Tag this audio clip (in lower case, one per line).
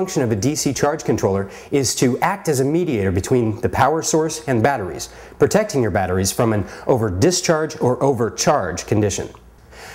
speech